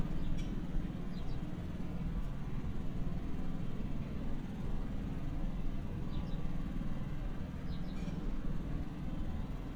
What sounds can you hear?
small-sounding engine